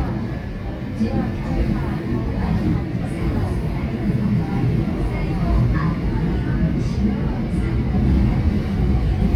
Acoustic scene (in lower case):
subway train